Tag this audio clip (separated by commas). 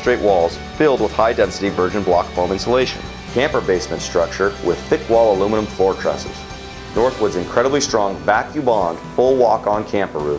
Speech, Music